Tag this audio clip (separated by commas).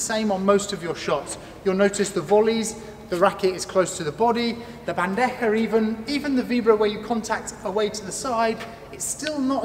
playing squash